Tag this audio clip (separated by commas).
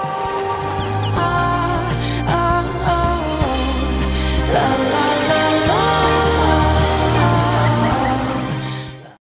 Music, Blues